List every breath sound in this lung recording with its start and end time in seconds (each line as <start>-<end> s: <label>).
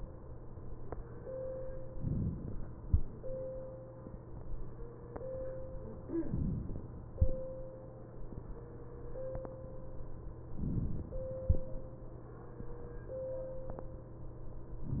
1.97-2.76 s: inhalation
6.17-6.95 s: inhalation
10.52-11.31 s: inhalation